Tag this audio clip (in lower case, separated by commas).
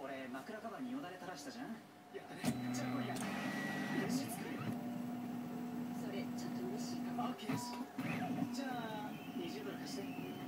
speech